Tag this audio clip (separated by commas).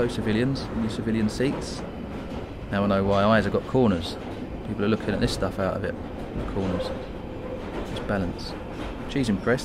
Speech